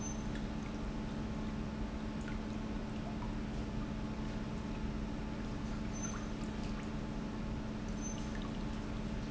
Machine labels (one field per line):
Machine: pump